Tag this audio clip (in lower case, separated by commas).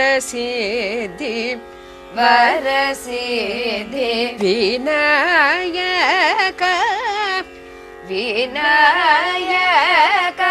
female speech, music